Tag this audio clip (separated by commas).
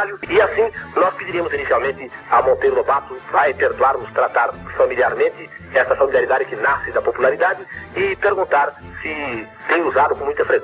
Radio, Speech, Music